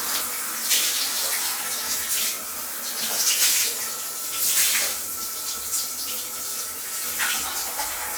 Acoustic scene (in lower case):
restroom